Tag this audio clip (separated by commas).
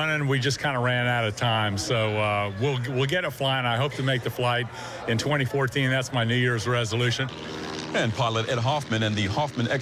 Vehicle, speedboat, Speech